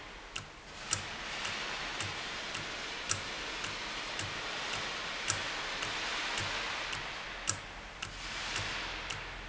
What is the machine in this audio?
valve